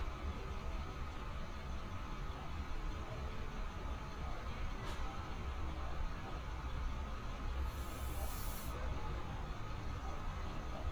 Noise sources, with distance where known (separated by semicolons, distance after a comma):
background noise